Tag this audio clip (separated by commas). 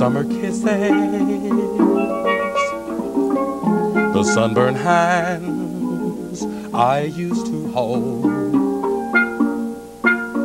Music, Steelpan, Musical instrument